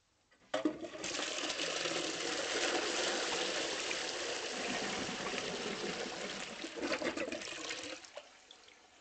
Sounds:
toilet flushing, Toilet flush, Water

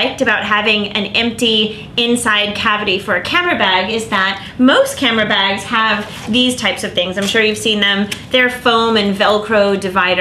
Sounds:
Speech

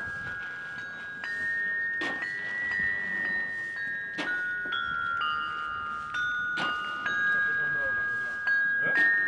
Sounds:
Speech, Music, Jingle bell

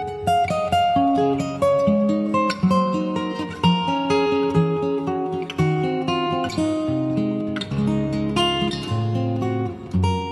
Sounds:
Plucked string instrument, Guitar, Music, Strum, Musical instrument, Acoustic guitar

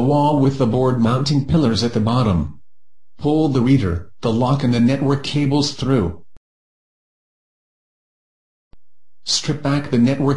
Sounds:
Speech

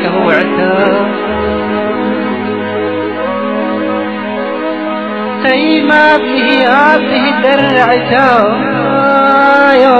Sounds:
Music

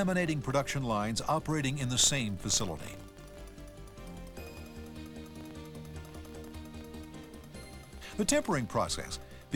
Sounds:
Speech, Music

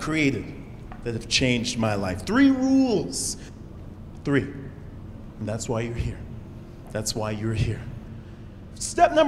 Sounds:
Speech

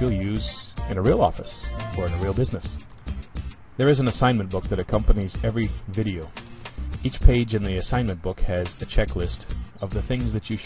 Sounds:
Music, Speech

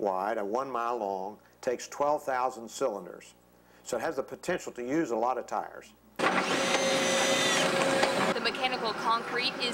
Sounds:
Drill, Speech

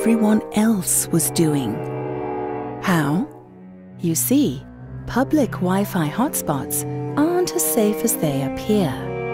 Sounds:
Music, Speech

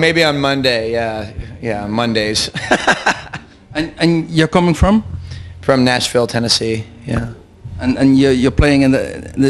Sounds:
Speech

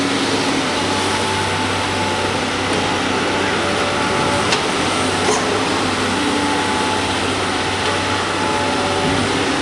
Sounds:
Vehicle

